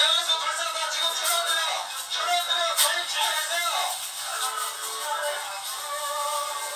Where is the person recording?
in a crowded indoor space